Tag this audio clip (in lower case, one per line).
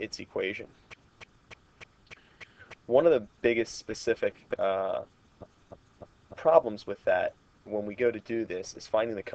speech